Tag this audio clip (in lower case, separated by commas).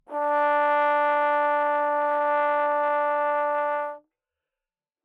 brass instrument, musical instrument, music